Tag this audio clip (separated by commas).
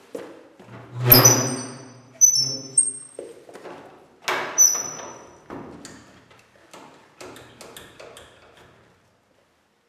Squeak